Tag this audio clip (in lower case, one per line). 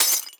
glass
shatter